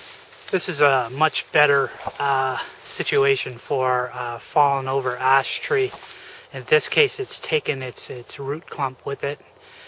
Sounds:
speech

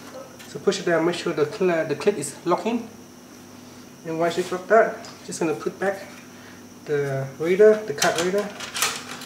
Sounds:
inside a small room, speech

